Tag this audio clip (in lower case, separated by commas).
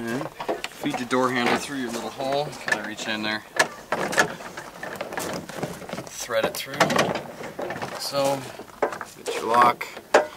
speech